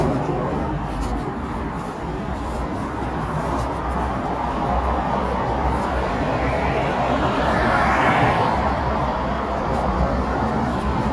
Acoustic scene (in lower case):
street